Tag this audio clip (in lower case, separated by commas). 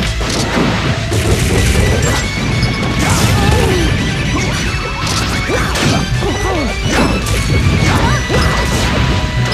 music, crash